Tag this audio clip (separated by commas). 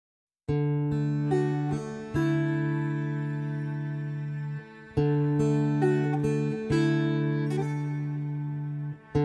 Acoustic guitar